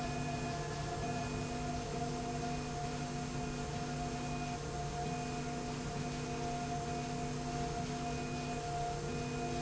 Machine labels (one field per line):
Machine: slide rail